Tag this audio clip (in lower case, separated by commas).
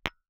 tap, glass